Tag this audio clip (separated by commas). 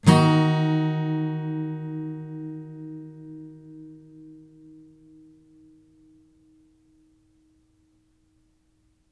Plucked string instrument, Guitar, Strum, Acoustic guitar, Music, Musical instrument